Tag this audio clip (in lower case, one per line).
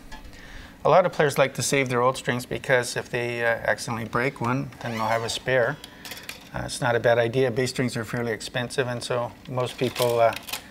speech